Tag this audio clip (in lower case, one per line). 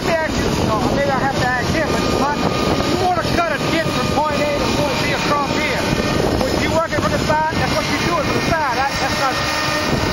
speech